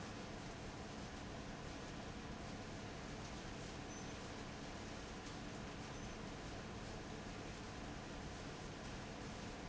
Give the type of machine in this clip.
fan